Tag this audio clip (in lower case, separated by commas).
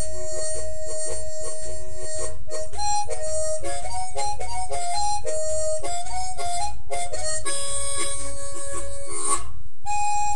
harmonica, music